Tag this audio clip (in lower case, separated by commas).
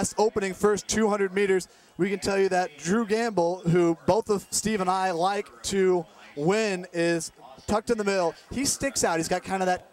outside, urban or man-made, speech